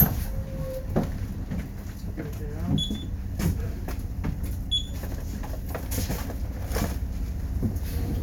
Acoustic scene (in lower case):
bus